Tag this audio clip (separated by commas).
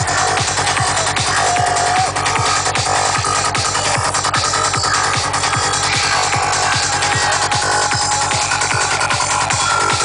Music, Speech